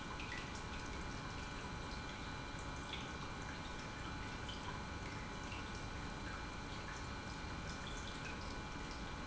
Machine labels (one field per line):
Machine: pump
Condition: normal